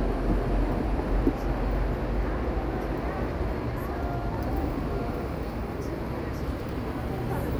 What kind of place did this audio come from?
street